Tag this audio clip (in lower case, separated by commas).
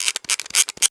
mechanisms, camera